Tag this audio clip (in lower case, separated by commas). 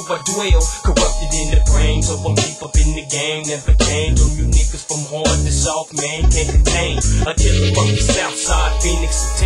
music, blues, dance music